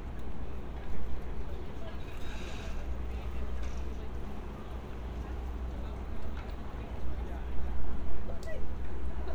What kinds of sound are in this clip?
person or small group talking